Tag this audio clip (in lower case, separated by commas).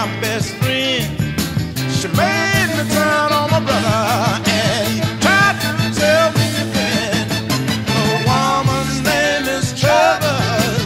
music, ska